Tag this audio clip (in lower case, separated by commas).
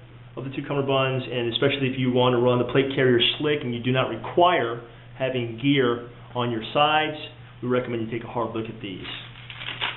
speech